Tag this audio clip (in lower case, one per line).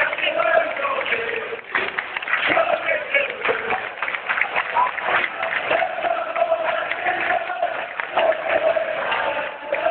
male singing